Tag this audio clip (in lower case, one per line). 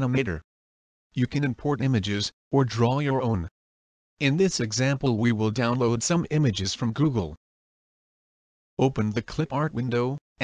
speech